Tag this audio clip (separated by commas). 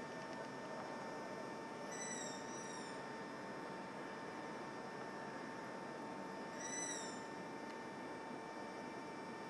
Animal, Bird